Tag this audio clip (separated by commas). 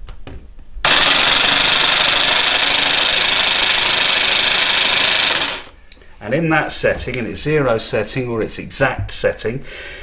Power tool, Tools